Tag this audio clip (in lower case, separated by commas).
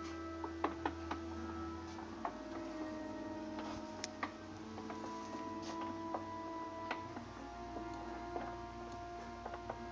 gears, pawl, mechanisms